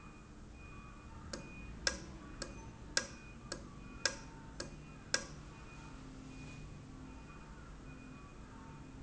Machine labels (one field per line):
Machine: valve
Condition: normal